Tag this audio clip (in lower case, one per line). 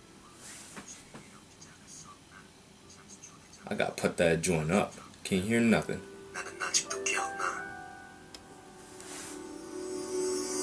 speech
inside a small room
music